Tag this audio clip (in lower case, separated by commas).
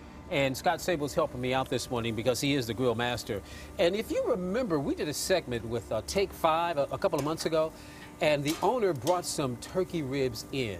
speech